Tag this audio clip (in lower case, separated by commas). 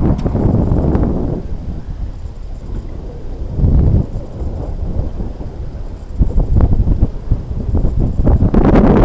wind noise, wind noise (microphone), wind